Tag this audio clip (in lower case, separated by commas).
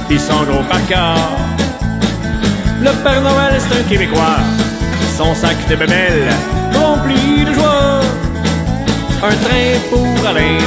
music